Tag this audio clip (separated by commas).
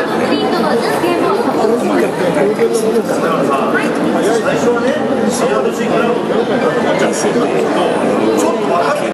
Speech